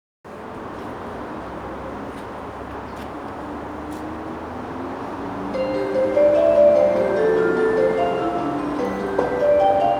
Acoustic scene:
subway station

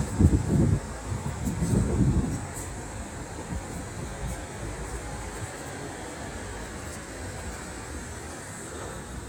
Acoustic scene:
street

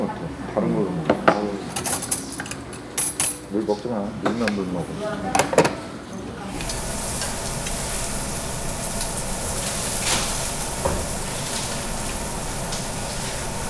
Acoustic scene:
restaurant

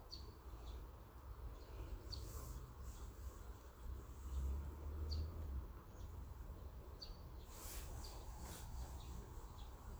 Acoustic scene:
park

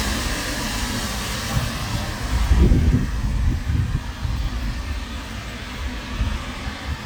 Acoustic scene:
street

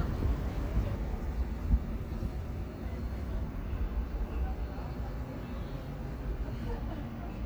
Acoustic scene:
park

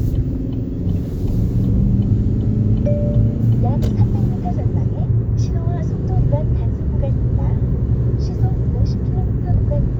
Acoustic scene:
car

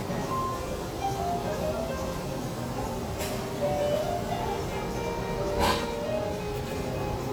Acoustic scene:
restaurant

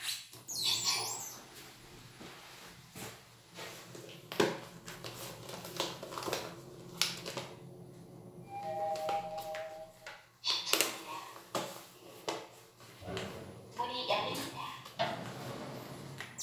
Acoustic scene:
elevator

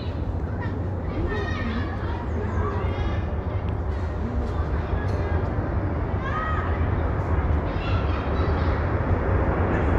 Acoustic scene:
residential area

